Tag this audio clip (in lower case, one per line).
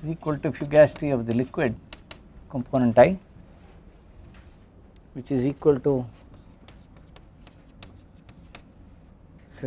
speech